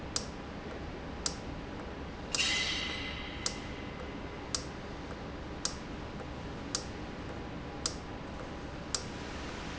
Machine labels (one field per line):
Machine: valve